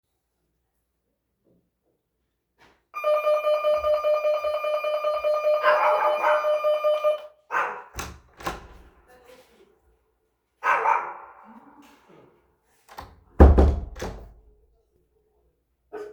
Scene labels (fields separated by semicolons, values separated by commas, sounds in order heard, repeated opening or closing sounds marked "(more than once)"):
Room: hallway; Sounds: bell ringing, door (more than once)